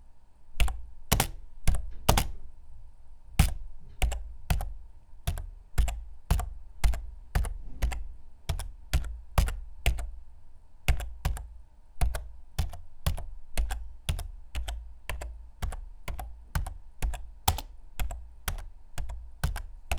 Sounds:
Computer keyboard, Typing, Domestic sounds

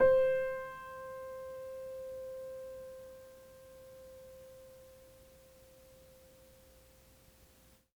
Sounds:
Music, Piano, Keyboard (musical), Musical instrument

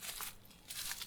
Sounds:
Walk

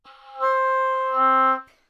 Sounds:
Music, Musical instrument, woodwind instrument

